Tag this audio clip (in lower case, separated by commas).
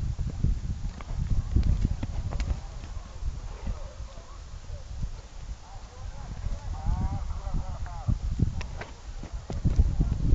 animal, speech, clip-clop, horse clip-clop, horse